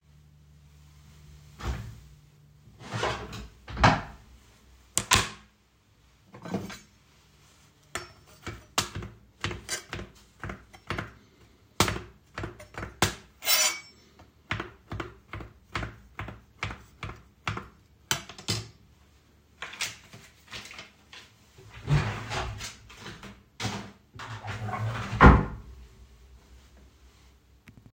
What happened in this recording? I opened a drawer to get a cutting board, closed it and put the cutting board on the table. I got my knife from the knive stand and started to cut. Then I opened the wastepaper bin drawer and threw away the waste and closed it again.